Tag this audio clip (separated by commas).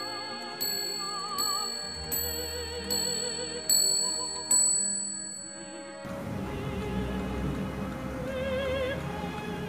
Music, Tick-tock